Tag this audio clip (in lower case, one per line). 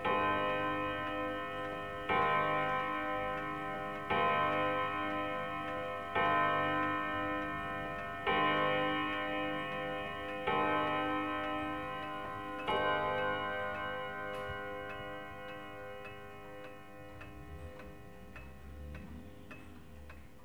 clock
mechanisms